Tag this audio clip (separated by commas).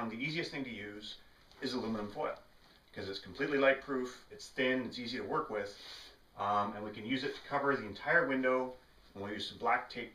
Speech